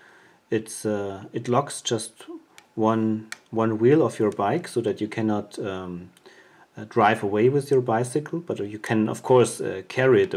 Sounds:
speech

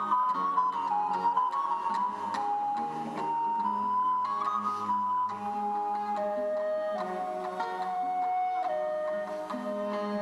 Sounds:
music, classical music, musical instrument, bowed string instrument

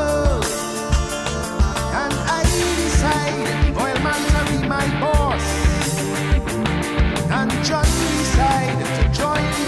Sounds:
music

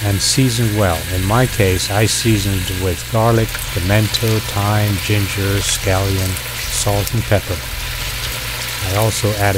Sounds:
inside a small room, frying (food), speech

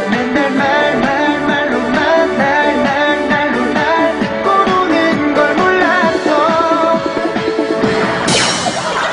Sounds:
music

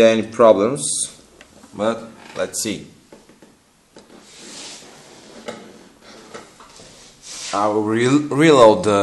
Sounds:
speech, inside a small room

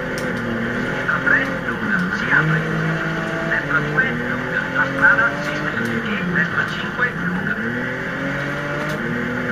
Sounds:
raindrop

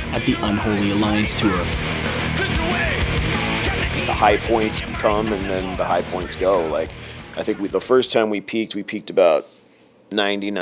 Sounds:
speech, music

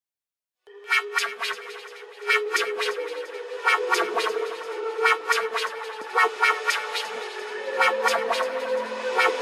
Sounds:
electronic music, music

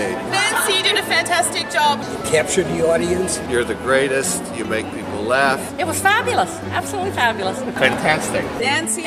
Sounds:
speech, music

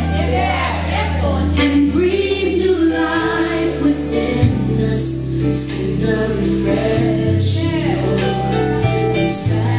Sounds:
speech, music

